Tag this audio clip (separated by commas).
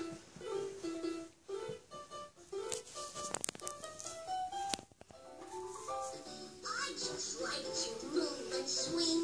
inside a small room, Speech, Music